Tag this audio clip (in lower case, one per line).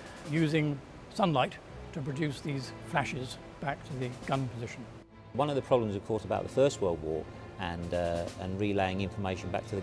music
speech